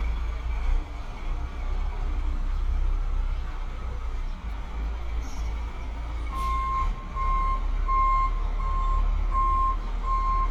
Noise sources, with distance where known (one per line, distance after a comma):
large-sounding engine
reverse beeper, near